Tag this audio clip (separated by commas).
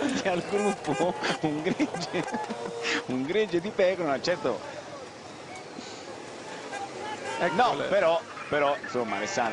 Speech